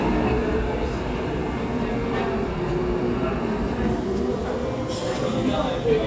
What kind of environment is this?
cafe